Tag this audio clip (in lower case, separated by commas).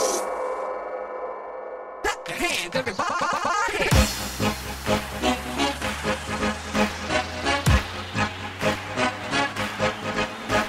electronic music, music